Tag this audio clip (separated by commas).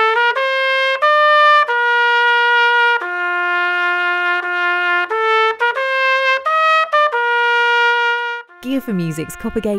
playing cornet